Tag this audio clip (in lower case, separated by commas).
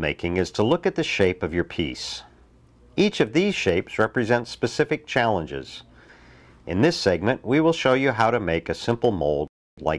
speech